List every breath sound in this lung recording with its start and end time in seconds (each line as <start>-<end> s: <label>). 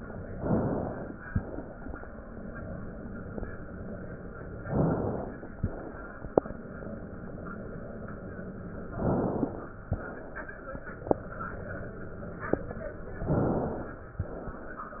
0.29-1.24 s: inhalation
1.18-2.27 s: crackles
1.21-2.31 s: exhalation
4.60-5.54 s: inhalation
5.53-6.54 s: crackles
5.54-6.56 s: exhalation
8.88-9.82 s: crackles
8.90-9.83 s: inhalation
9.83-10.77 s: exhalation
13.18-14.15 s: inhalation
14.15-14.66 s: exhalation
14.15-14.66 s: crackles